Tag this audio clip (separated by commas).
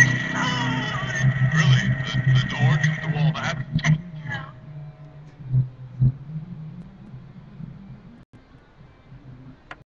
Speech